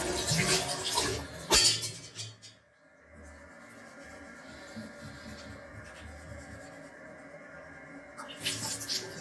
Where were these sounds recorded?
in a restroom